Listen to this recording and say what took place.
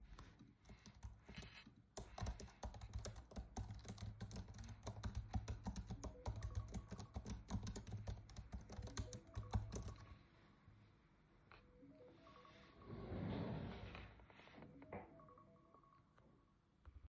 I was typing on my laptop when my alarm went off and then I opened a drawer whilst the alarm still sounded